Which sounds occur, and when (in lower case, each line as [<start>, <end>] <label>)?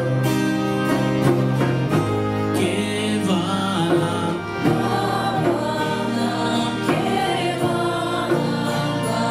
[0.01, 9.30] music
[2.53, 4.30] male singing
[4.54, 9.30] female singing